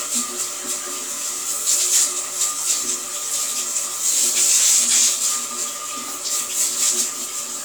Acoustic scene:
restroom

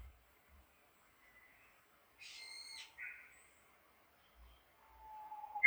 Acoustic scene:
park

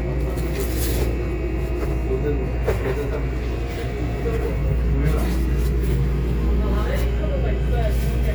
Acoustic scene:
subway train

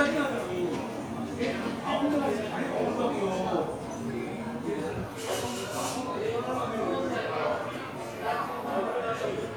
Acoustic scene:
crowded indoor space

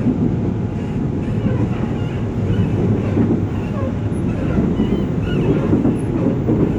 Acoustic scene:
subway train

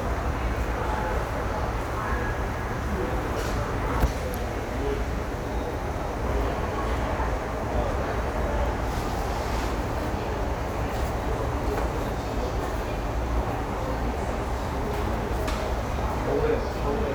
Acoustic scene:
subway station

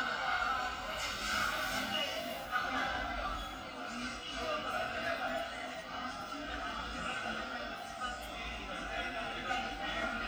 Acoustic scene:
cafe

